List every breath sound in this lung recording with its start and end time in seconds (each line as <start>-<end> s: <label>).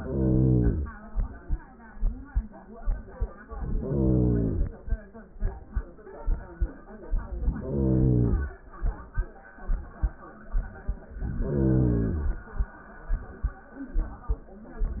0.00-0.97 s: inhalation
3.48-4.90 s: inhalation
7.19-8.60 s: inhalation
11.12-12.53 s: inhalation